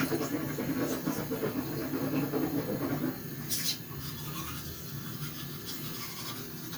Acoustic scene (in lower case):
restroom